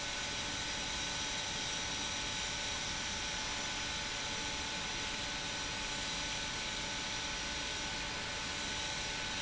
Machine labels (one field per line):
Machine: pump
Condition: abnormal